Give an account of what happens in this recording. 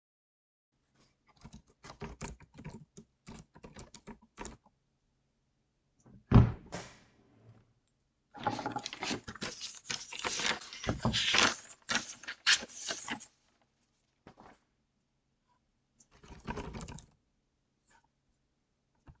I typed on the keyboard, opened a drawer to get some paper and typed again.